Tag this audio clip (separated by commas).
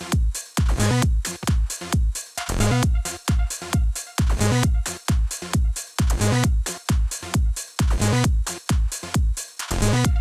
Music